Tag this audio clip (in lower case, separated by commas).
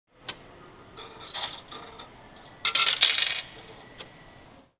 home sounds, coin (dropping)